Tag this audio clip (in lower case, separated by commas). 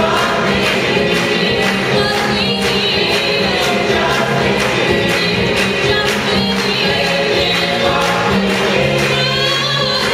music, choir